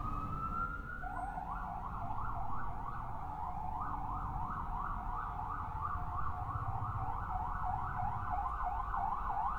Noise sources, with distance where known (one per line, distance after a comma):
siren